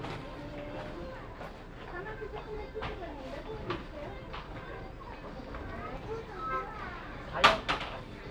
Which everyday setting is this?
crowded indoor space